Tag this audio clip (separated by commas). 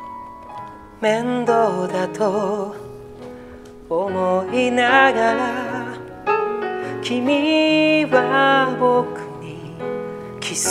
Music